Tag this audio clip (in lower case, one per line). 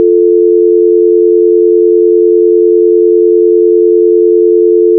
alarm
telephone